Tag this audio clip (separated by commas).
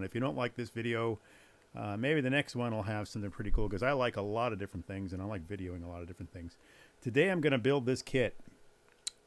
Speech